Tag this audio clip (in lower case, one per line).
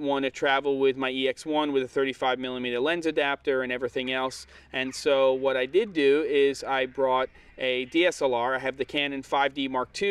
speech